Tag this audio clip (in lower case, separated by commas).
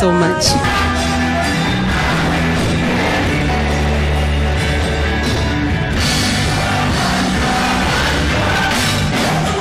music, speech